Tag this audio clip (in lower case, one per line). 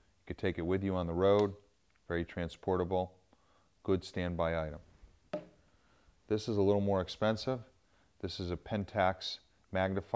speech
tools